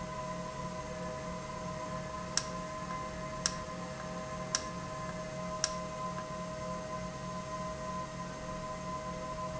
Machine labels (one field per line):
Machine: valve